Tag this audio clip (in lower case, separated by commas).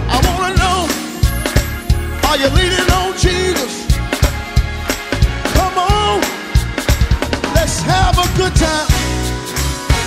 music, singing